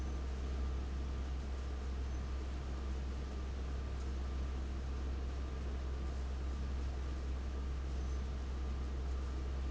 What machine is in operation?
fan